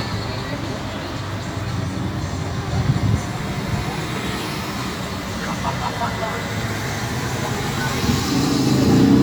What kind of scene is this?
street